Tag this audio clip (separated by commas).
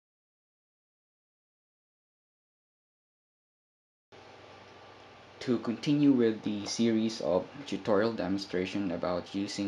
Speech